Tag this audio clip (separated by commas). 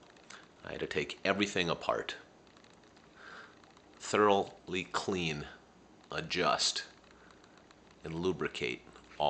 Speech